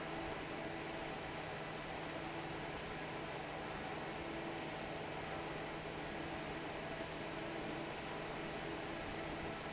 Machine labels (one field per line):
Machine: fan